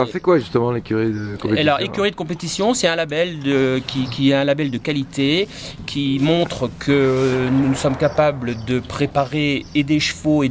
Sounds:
speech

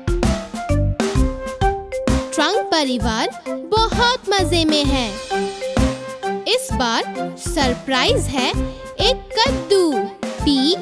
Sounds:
people battle cry

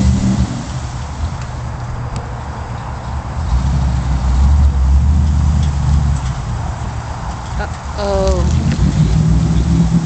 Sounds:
speech

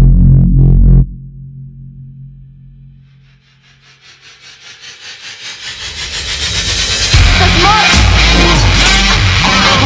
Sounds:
music, speech

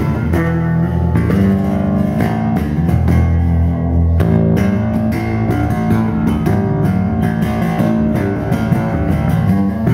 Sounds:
guitar, musical instrument, music, bass guitar, plucked string instrument

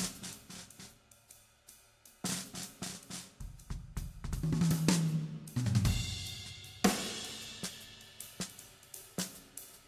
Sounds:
cymbal, hi-hat, playing cymbal

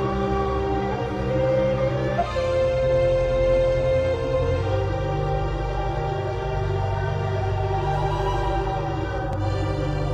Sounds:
flute, music, scary music

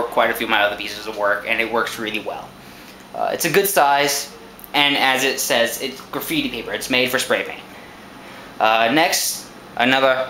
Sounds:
speech

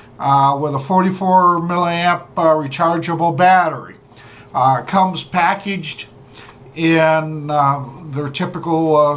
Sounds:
speech

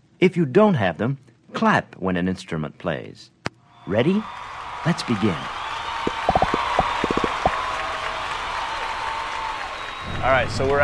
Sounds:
speech

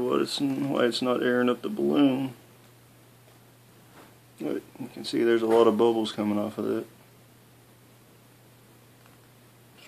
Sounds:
speech

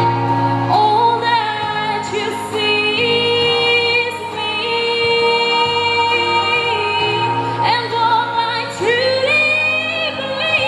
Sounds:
music, female singing

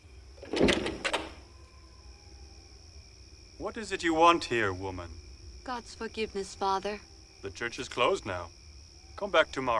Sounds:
speech

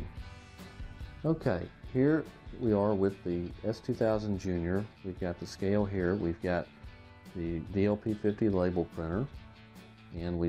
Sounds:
music, speech

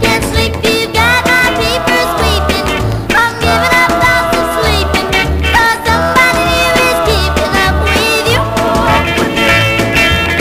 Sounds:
music

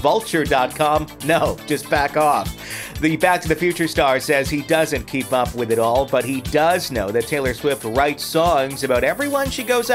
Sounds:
speech, music

